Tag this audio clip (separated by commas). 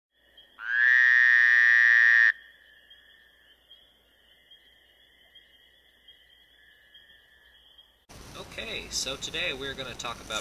inside a large room or hall, Speech